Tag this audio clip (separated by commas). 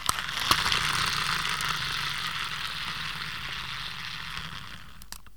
Engine